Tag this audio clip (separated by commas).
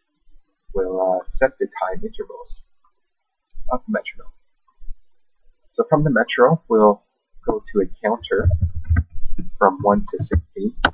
monologue, Drum machine